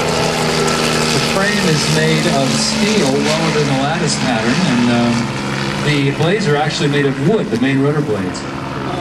A man talking with a helicopter in the background